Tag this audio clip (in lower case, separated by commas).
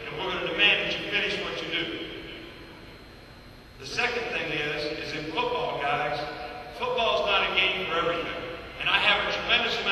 male speech, narration, speech